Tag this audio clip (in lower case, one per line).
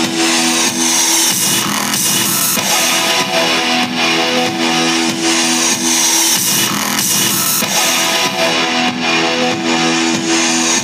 music